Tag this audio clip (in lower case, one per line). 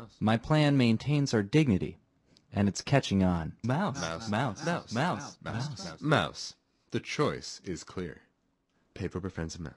speech